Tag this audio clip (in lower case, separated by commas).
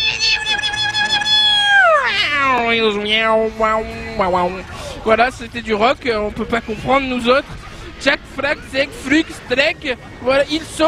speech